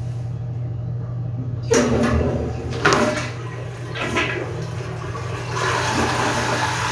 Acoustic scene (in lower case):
restroom